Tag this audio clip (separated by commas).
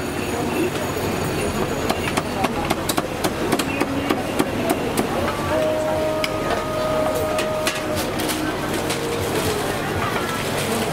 chopping food